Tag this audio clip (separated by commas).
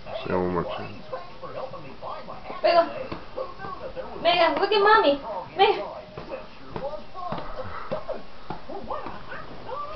Speech